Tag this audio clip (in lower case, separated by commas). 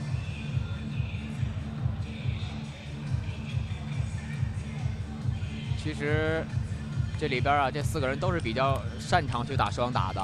speech